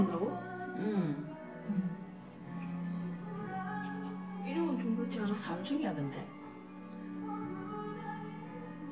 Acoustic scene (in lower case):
cafe